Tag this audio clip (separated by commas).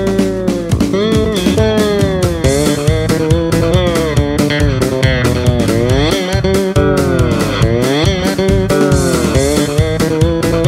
slide guitar